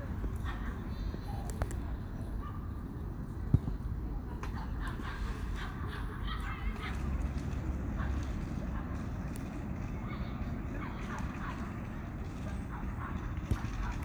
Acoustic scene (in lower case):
park